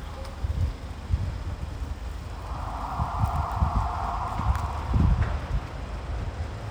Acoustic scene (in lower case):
residential area